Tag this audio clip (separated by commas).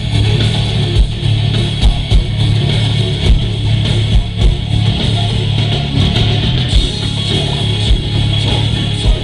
Music